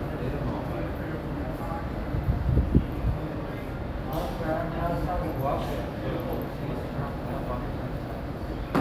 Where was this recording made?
in a subway station